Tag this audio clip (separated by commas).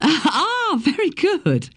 Human voice